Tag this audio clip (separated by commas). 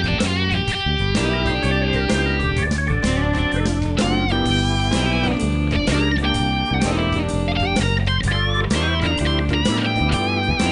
slide guitar, Music